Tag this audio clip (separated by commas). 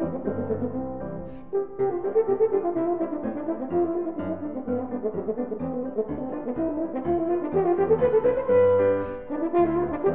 playing french horn, French horn, Music